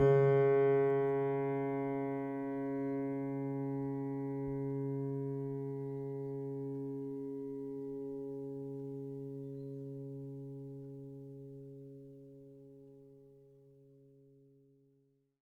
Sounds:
keyboard (musical), musical instrument, piano, music

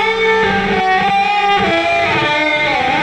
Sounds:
electric guitar, plucked string instrument, guitar, musical instrument, music

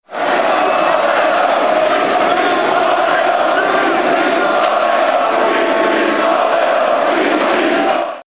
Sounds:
crowd, human group actions

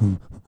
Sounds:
breathing, respiratory sounds

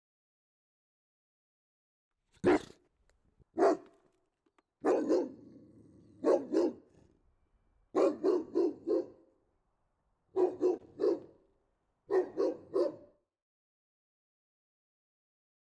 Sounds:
animal, domestic animals, bark, dog

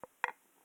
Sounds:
chink, home sounds, glass, dishes, pots and pans

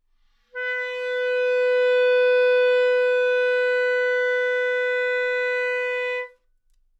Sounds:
musical instrument, music, wind instrument

